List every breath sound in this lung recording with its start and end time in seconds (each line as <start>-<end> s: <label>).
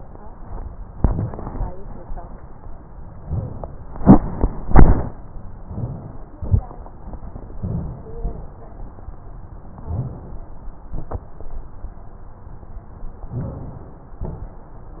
5.66-6.36 s: inhalation
5.66-6.17 s: rhonchi
6.38-6.96 s: exhalation
6.38-6.66 s: rhonchi
7.53-8.18 s: inhalation
7.55-8.04 s: rhonchi
8.22-8.86 s: exhalation
9.77-10.63 s: inhalation
9.85-10.13 s: rhonchi
13.30-14.21 s: inhalation
13.32-13.91 s: rhonchi
14.21-14.80 s: exhalation